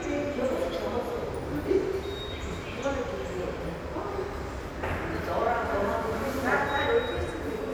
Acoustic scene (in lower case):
subway station